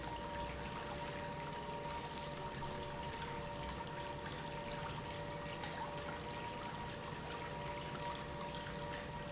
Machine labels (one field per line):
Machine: pump